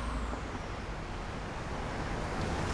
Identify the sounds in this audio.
bus, car, bus engine accelerating, bus wheels rolling, car wheels rolling